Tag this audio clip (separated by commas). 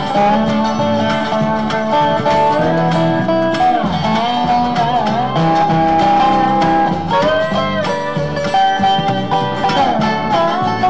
Bluegrass, Music